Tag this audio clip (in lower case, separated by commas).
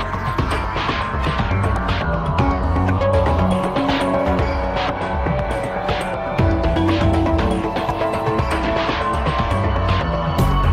soundtrack music, music